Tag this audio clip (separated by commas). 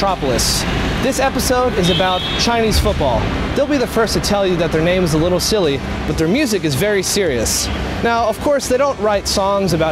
Speech, Music